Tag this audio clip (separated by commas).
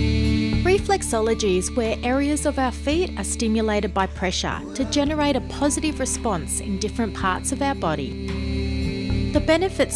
Speech, Music